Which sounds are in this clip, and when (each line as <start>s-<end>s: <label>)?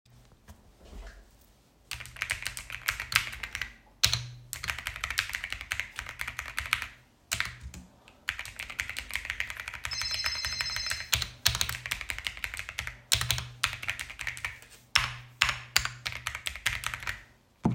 1.8s-17.4s: keyboard typing
9.7s-11.7s: phone ringing